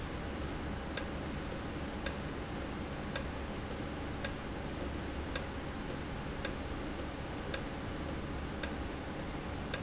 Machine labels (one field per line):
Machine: valve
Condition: normal